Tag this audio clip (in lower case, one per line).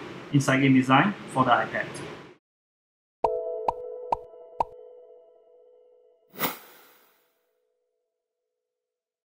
music
speech